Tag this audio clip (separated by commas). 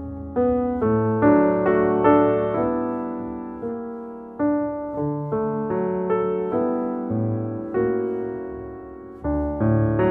Music